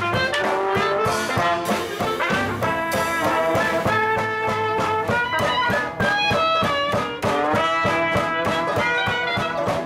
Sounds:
Music, New-age music, Exciting music

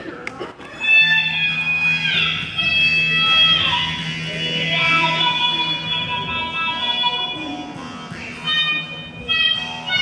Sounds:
Musical instrument, Violin, Music

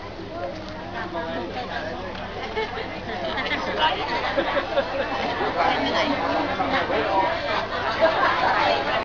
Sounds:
Speech

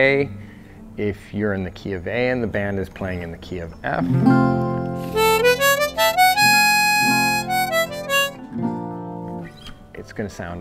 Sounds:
Plucked string instrument, Music, Speech, Harmonica, Musical instrument, Guitar

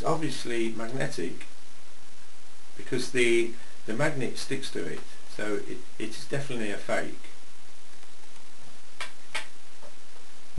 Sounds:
Speech

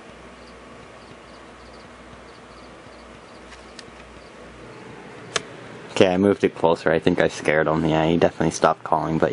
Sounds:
Speech, Frog

